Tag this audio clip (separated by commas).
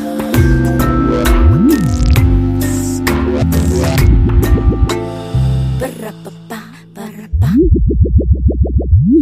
Music